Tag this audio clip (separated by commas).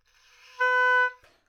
Musical instrument, Music, woodwind instrument